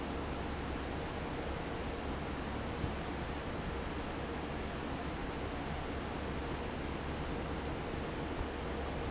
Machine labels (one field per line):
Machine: fan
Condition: normal